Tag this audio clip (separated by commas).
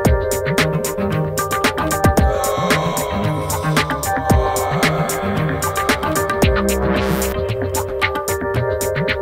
Music, Synthesizer